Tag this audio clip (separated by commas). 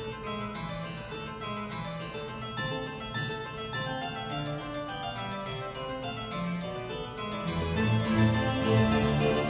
Harpsichord